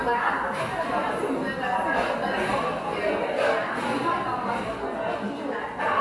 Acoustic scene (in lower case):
cafe